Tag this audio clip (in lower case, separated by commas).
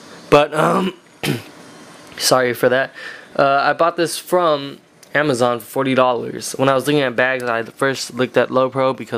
speech